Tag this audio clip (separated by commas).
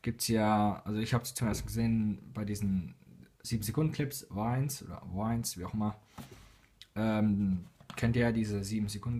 Speech